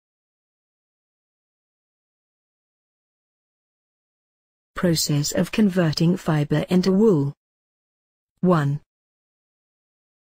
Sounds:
speech

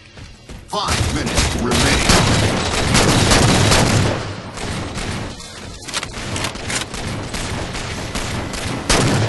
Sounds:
fusillade
speech

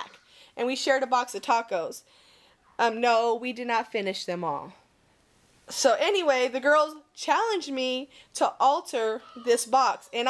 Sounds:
speech

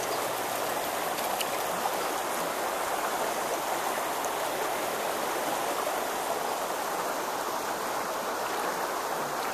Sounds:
stream

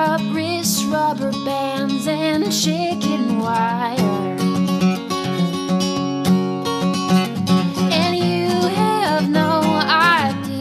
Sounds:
music

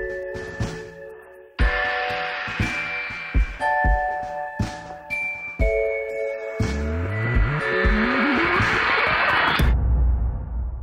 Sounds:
music

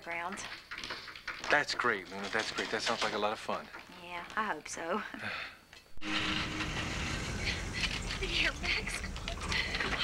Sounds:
speech
car
vehicle

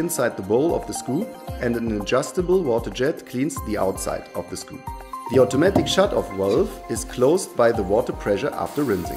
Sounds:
music
spray
speech

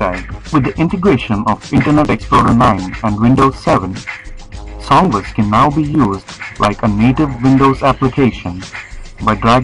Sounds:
music
speech
speech synthesizer

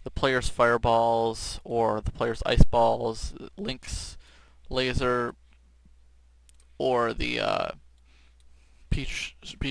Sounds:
speech
inside a small room
clicking

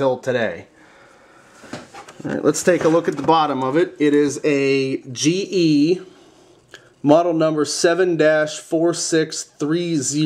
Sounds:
speech

